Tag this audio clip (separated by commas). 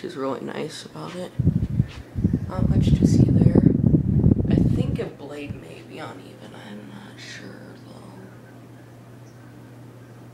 Speech